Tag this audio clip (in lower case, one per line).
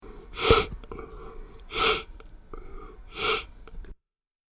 respiratory sounds